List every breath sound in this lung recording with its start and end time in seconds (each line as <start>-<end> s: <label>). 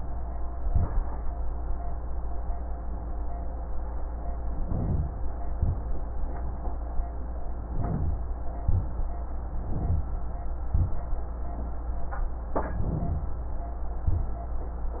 4.50-5.35 s: inhalation
5.52-6.05 s: exhalation
7.59-8.39 s: inhalation
8.65-9.19 s: exhalation
9.51-10.30 s: inhalation
10.74-11.14 s: exhalation
12.47-13.44 s: inhalation
14.08-14.48 s: exhalation